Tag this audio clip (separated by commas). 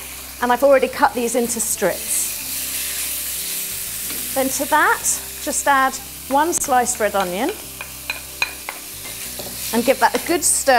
Music, Speech